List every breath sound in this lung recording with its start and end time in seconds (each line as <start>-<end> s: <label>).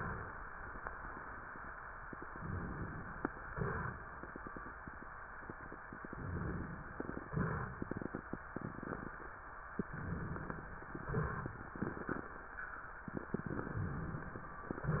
2.27-3.31 s: inhalation
3.49-3.97 s: exhalation
6.10-6.90 s: inhalation
7.33-7.80 s: exhalation
9.90-10.70 s: inhalation
9.90-10.70 s: crackles
11.07-11.54 s: exhalation